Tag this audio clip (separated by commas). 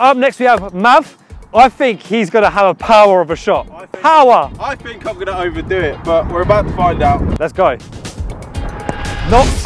shot football